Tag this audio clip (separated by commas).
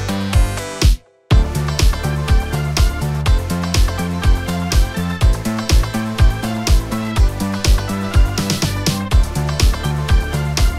Music